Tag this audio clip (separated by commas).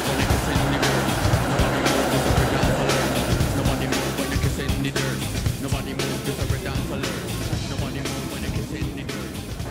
Music